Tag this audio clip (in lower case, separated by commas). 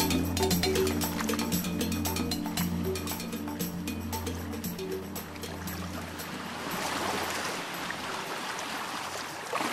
music